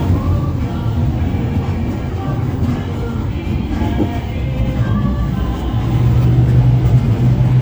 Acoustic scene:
bus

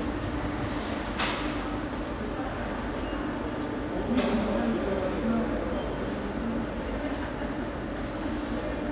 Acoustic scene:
subway station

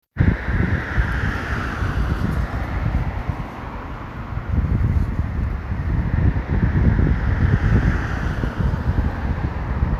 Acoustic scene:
street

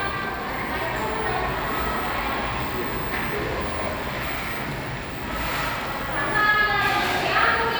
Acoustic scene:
cafe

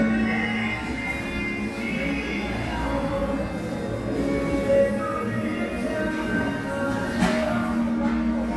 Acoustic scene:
cafe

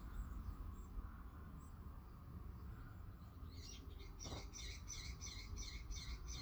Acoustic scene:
residential area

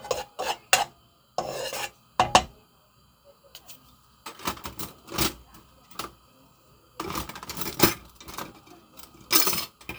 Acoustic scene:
kitchen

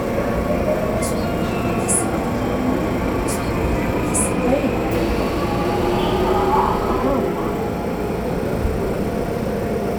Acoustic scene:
subway train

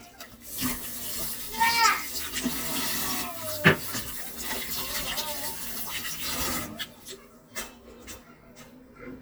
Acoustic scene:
kitchen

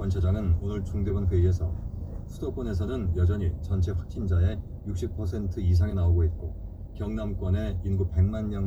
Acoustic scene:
car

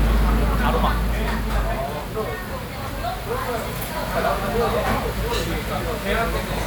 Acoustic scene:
crowded indoor space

